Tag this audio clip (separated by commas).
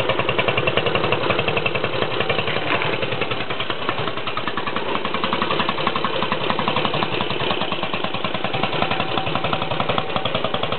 Motorcycle, driving motorcycle, Vehicle